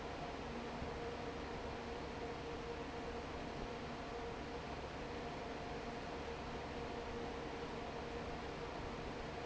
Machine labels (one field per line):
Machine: fan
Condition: normal